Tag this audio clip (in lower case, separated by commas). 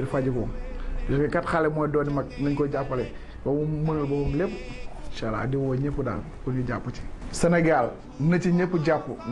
speech